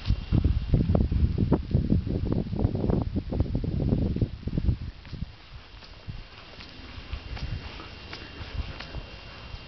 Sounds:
footsteps

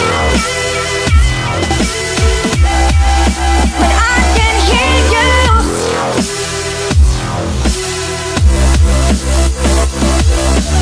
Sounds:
Music, Drum and bass

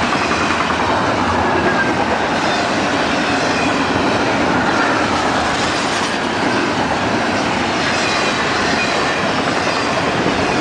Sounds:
Train, Clickety-clack, Rail transport, train wagon

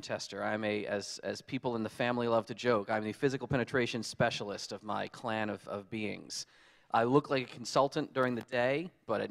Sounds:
Speech

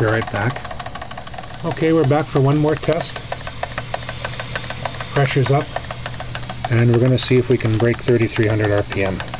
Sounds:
Engine, Speech

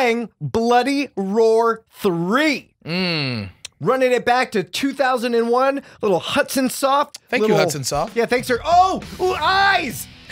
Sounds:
Speech, Music

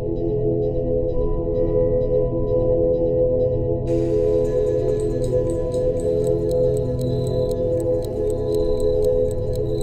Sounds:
Snort, Music

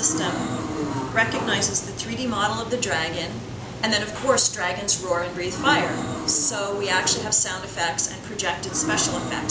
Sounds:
Speech

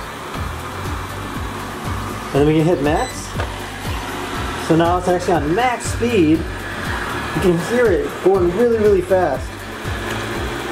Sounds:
vacuum cleaner cleaning floors

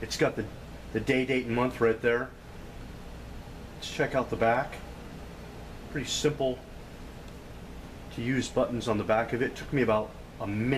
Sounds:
Speech

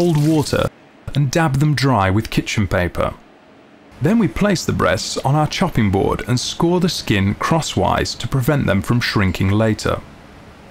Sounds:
Speech

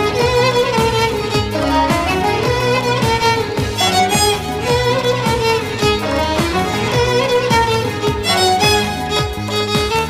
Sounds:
Musical instrument, Violin, Music

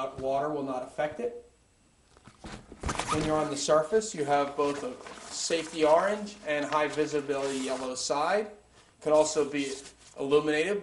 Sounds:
Speech

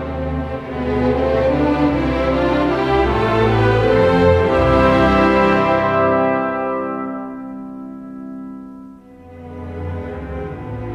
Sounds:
Music, Musical instrument

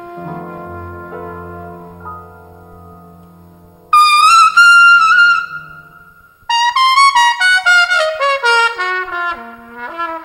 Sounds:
playing trumpet, Trumpet, Brass instrument

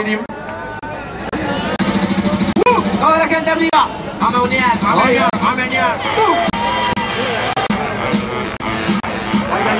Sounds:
Speech, Music

